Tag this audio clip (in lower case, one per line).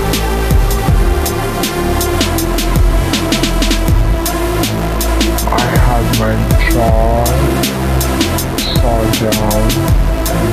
music